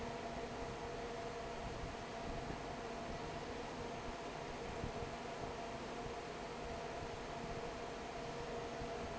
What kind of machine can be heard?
fan